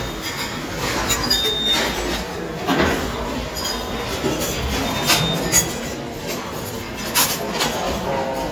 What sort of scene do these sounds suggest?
restaurant